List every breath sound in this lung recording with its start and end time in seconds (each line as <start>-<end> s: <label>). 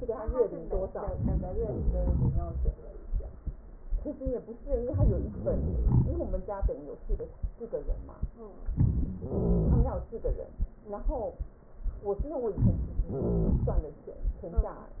9.16-10.11 s: wheeze
13.07-13.90 s: wheeze